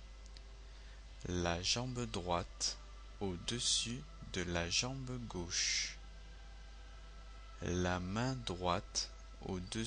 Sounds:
speech

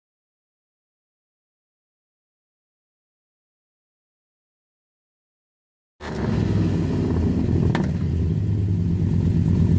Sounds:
outside, urban or man-made
vehicle
car
silence

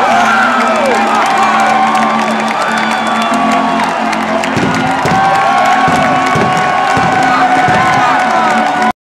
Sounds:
music

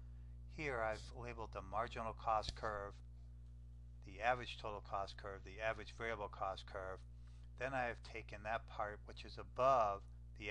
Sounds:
speech

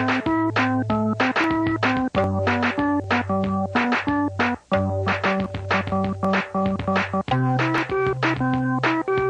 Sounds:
music

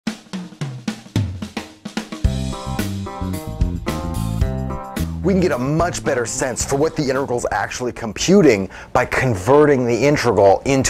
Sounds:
cymbal
music
hi-hat
speech
snare drum

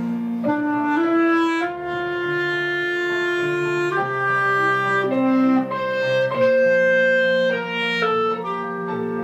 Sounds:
playing clarinet

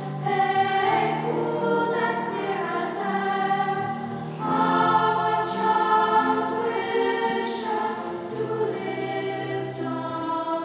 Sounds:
music

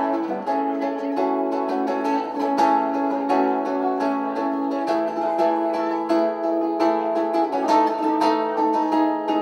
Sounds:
music
plucked string instrument
guitar
speech
musical instrument

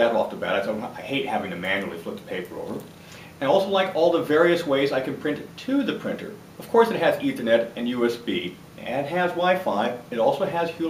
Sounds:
speech

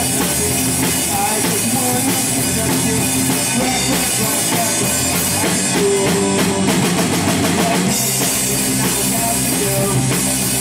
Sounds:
music
punk rock
roll

